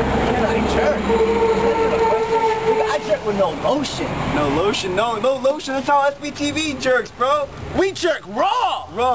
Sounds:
Speech

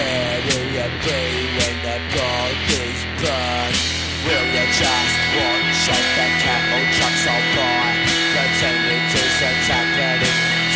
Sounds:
Music, Punk rock

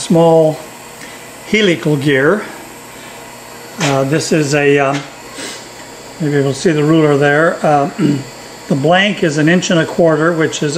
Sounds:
Speech

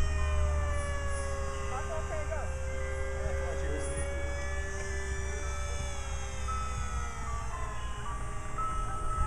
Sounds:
Speech, Music

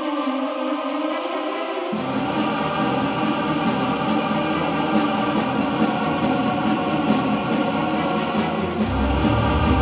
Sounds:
Effects unit, Reverberation, Music

